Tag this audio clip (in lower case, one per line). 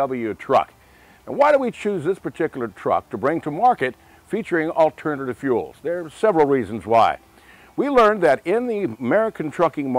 speech